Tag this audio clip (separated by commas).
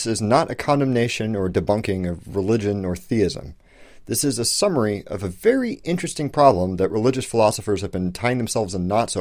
Speech